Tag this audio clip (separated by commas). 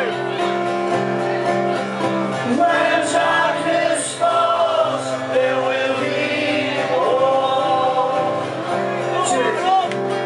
Middle Eastern music, Music